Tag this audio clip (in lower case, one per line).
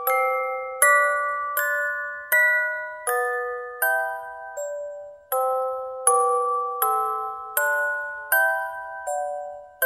music
jingle (music)